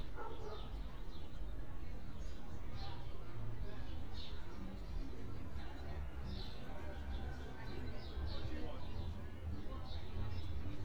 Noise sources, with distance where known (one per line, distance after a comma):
music from an unclear source, far
person or small group talking, near
dog barking or whining, far